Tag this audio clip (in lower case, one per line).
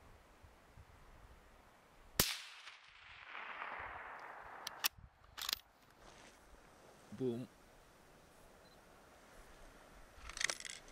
gunfire